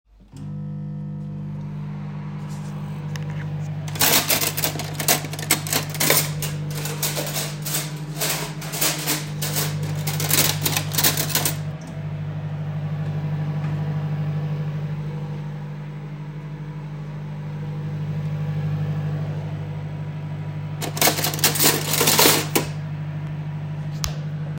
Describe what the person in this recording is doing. The microwave is running while I am serching for a knife in the cutlery.